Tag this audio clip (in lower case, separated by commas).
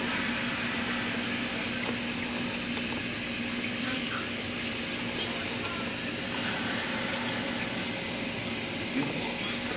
water